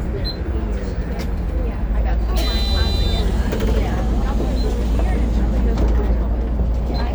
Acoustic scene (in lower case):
bus